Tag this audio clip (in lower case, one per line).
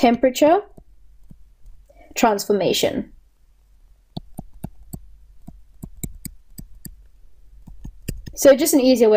speech